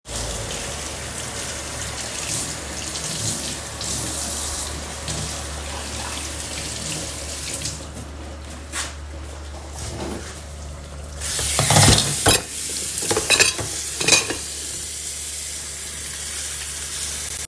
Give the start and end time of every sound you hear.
[0.00, 7.88] running water
[9.35, 10.64] wardrobe or drawer
[11.12, 17.47] running water
[11.69, 14.46] cutlery and dishes

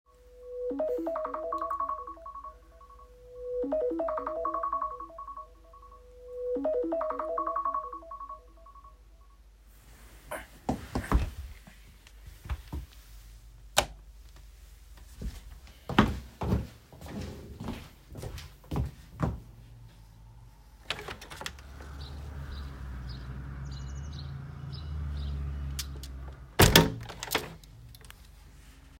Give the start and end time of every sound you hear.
[0.08, 9.39] phone ringing
[13.66, 13.97] light switch
[15.12, 19.49] footsteps
[20.79, 21.60] window
[26.46, 27.68] window

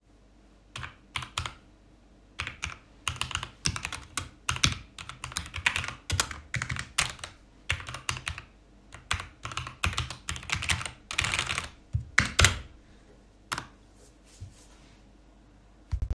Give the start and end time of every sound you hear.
[0.73, 12.74] keyboard typing
[13.46, 13.68] keyboard typing

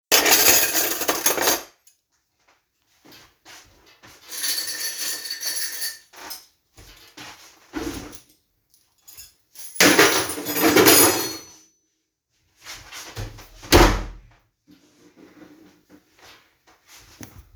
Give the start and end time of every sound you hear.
[0.00, 1.70] cutlery and dishes
[3.02, 4.30] footsteps
[4.32, 6.04] keys
[6.49, 7.57] footsteps
[9.11, 11.65] keys
[10.44, 11.66] cutlery and dishes
[12.62, 13.68] footsteps
[13.70, 14.18] door
[16.16, 17.55] footsteps

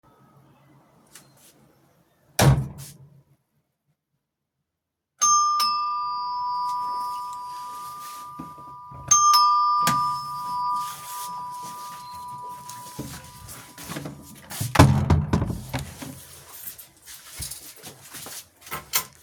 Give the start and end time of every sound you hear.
[2.34, 3.03] door
[5.17, 13.12] bell ringing
[14.56, 16.81] door

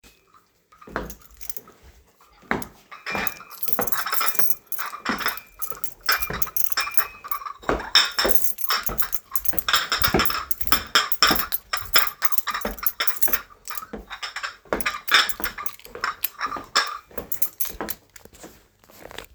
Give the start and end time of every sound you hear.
[0.23, 17.59] cutlery and dishes
[0.68, 19.34] footsteps
[0.91, 18.57] keys

